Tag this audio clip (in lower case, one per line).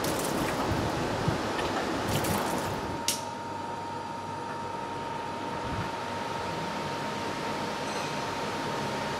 wind